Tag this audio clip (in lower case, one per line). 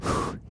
respiratory sounds
breathing